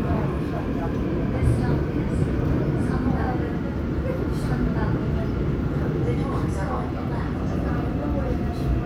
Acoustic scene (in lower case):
subway train